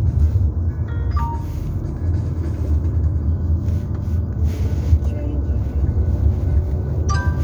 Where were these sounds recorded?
in a car